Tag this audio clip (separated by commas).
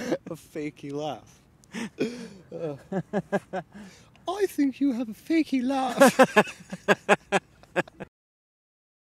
Speech